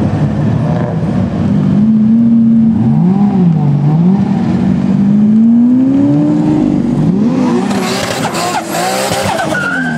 A vehicle accelerates then quickly slams on the brakes